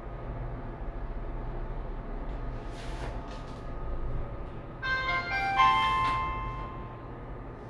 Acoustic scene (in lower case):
elevator